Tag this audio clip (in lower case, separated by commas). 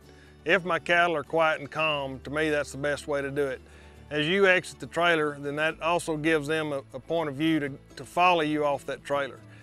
speech, music